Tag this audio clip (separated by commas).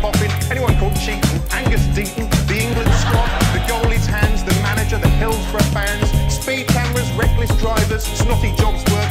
Music, Speech